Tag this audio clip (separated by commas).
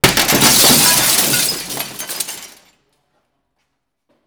Glass, Shatter